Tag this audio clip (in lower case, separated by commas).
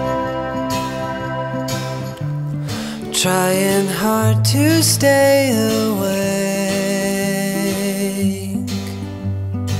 music